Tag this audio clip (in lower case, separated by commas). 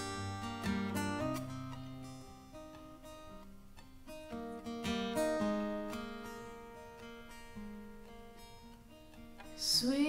music